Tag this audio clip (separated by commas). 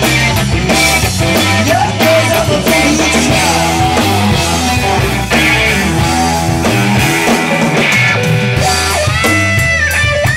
Progressive rock, Rock and roll, Music, Punk rock, Angry music, Blues